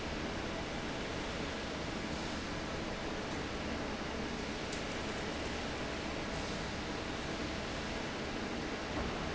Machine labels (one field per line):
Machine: fan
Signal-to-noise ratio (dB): -6 dB